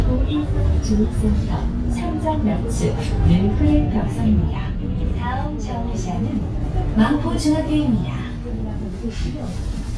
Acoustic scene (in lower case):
bus